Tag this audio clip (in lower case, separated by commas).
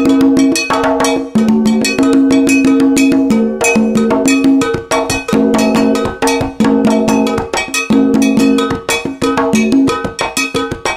playing congas